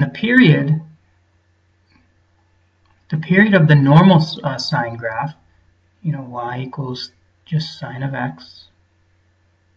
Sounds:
speech

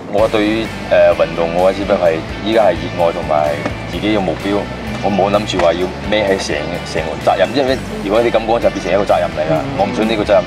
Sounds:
speech, music

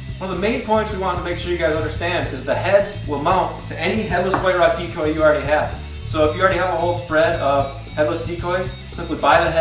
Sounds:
music, speech

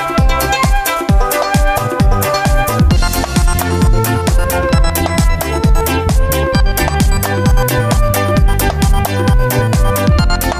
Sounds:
music

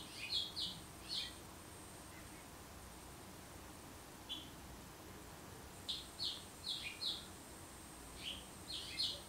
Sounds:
baltimore oriole calling

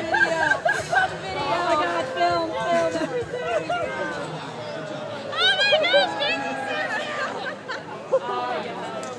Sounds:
music, speech, chatter

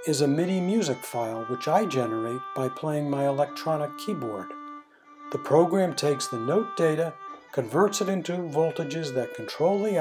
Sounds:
music, fiddle, speech, musical instrument

